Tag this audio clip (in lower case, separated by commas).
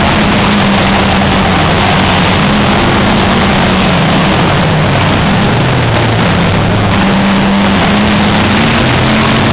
car passing by